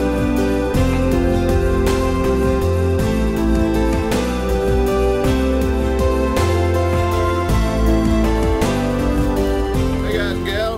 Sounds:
speech, music

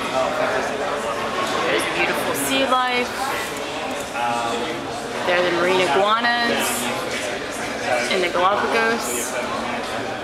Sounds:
speech

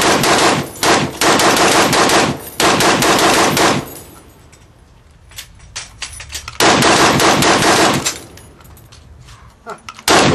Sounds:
machine gun, machine gun shooting

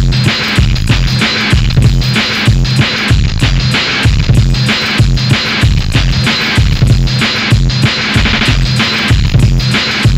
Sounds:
music, electronic music, techno

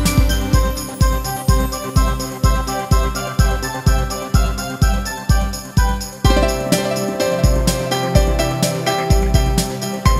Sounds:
echo, music

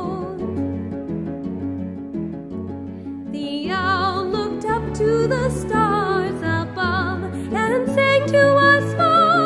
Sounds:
music

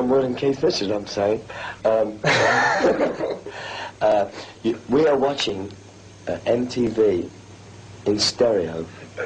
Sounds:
speech

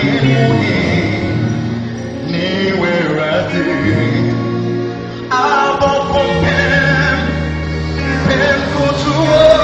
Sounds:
music, singing

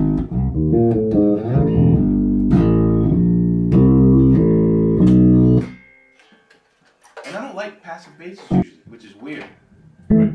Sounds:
music, speech

